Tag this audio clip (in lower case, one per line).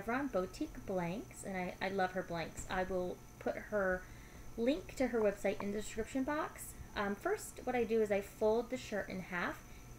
speech